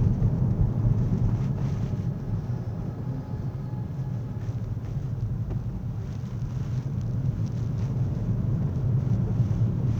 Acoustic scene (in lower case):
car